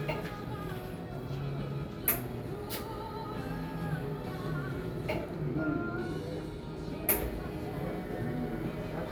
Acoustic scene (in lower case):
cafe